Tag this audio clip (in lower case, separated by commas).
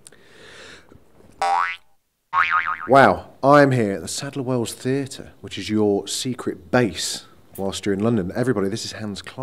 boing, speech